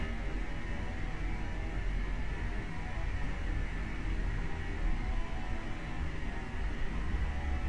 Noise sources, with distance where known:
unidentified impact machinery

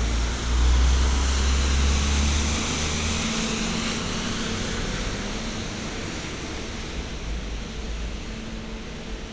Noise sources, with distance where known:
large-sounding engine, near

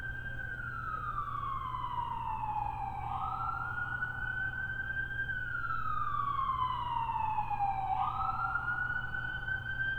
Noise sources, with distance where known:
siren, far

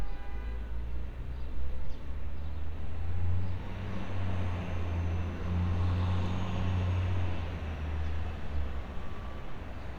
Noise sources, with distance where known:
large-sounding engine; car horn

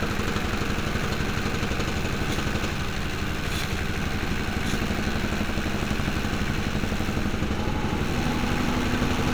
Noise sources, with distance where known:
unidentified impact machinery

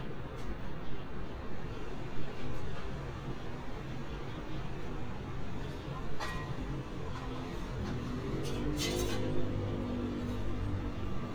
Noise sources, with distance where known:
small-sounding engine, far

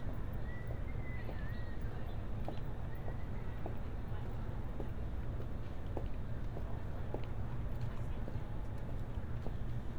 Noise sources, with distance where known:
person or small group talking, far

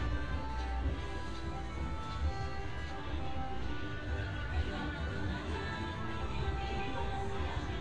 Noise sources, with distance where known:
music from an unclear source

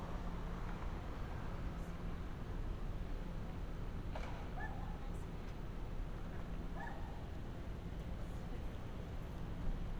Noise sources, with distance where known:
person or small group talking, near; dog barking or whining, far

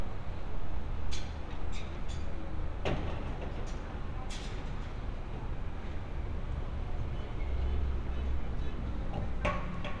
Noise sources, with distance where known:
unidentified alert signal, far

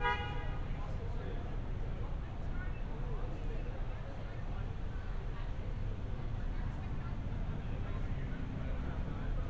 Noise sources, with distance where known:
medium-sounding engine, far; car horn, near; person or small group talking, far

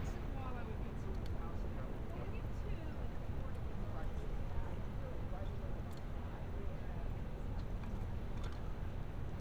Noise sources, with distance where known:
person or small group talking

